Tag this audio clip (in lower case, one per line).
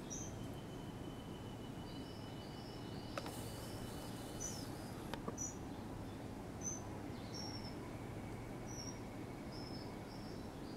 cuckoo bird calling